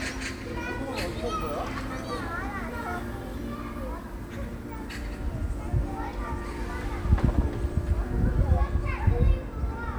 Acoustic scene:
park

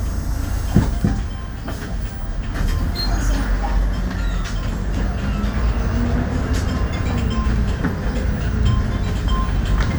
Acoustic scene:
bus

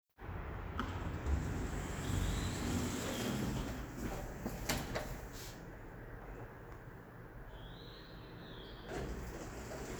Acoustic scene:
elevator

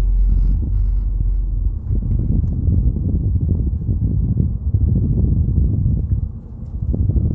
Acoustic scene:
car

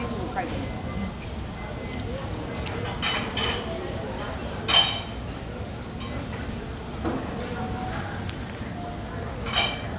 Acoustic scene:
cafe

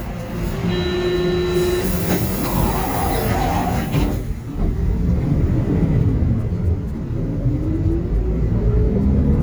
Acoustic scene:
bus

